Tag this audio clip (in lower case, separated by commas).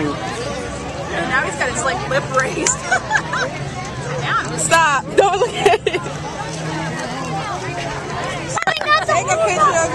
music, speech